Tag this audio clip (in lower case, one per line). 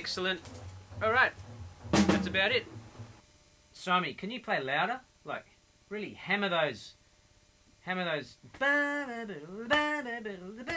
music
musical instrument
speech